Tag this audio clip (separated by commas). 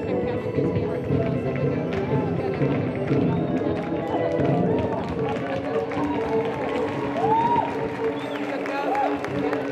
Speech, Music